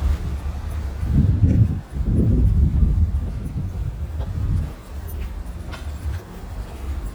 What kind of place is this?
residential area